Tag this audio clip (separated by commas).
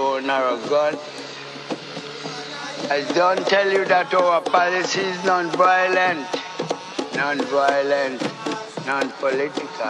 Speech, Music